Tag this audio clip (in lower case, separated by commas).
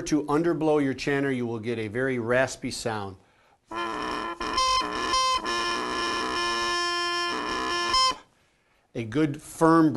woodwind instrument